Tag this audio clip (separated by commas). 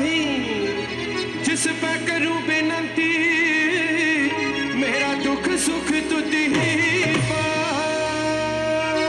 Music